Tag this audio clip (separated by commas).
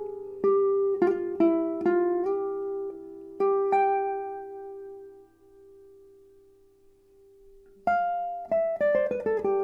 Guitar, Acoustic guitar, Plucked string instrument, Musical instrument, Strum, Music